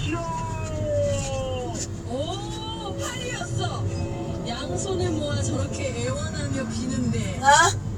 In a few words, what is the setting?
car